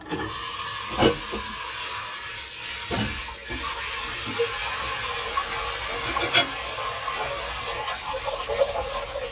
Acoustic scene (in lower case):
kitchen